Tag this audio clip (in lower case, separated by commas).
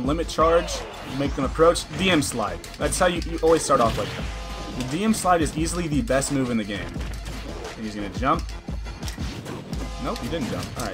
speech, music